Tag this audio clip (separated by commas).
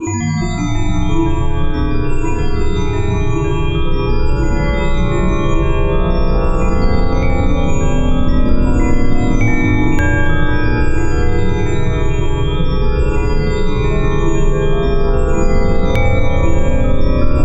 Chime, Bell